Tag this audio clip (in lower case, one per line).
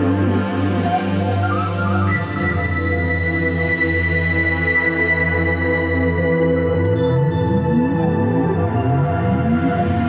music